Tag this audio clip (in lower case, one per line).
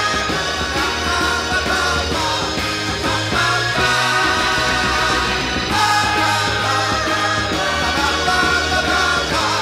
rock and roll
music